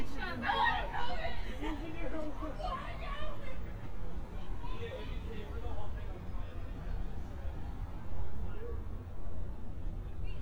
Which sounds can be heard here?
person or small group shouting